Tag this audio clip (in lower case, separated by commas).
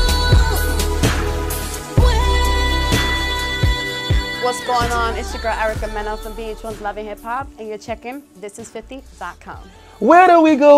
speech, music, background music